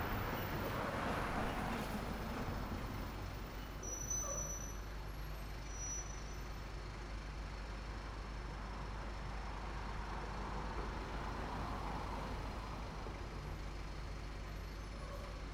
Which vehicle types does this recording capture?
car, bus